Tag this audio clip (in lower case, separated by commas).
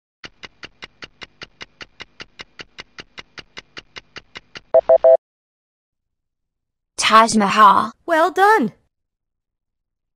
speech